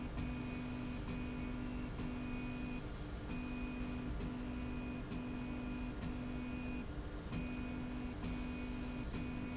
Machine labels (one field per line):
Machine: slide rail